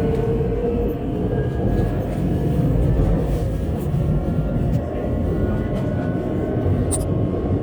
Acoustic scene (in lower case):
subway train